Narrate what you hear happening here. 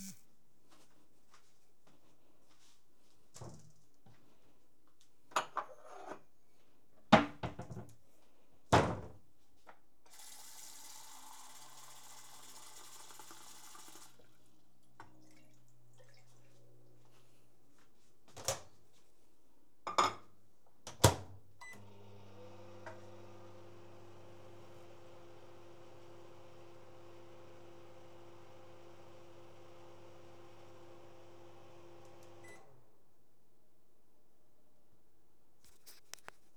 I entered the kitchen and opened a cupboard in order to take a cup. I filled in some water and then heated it up in the microwave.